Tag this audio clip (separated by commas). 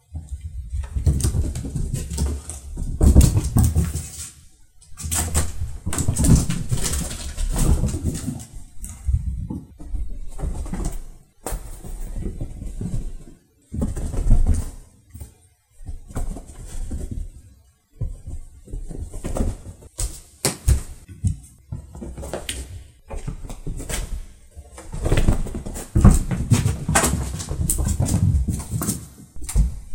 Cat, pets, Animal